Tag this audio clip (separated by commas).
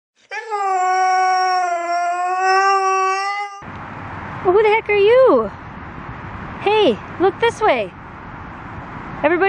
Domestic animals, Dog